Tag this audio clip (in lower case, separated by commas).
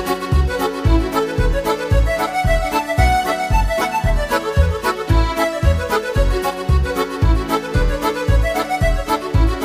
dance music, music